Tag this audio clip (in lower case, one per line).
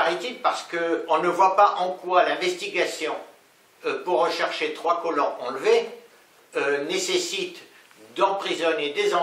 speech